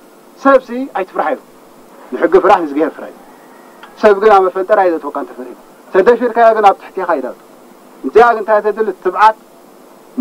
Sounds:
speech, male speech

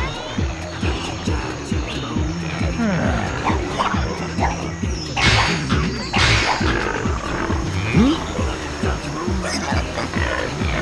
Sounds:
music

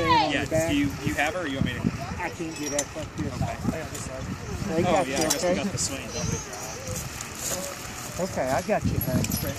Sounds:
outside, rural or natural, kid speaking, speech

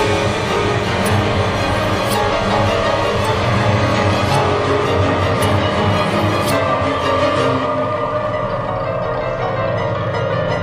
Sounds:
music, soundtrack music

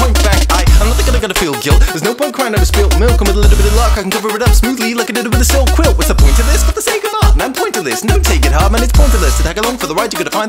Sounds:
rapping

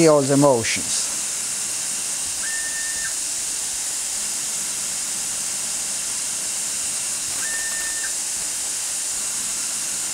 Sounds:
steam, hiss

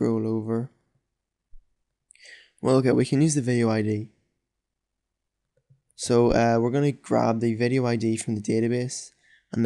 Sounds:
speech

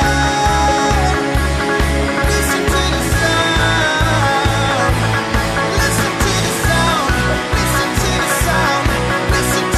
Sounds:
music

